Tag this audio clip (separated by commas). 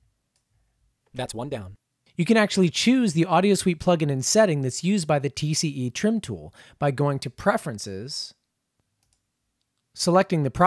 Speech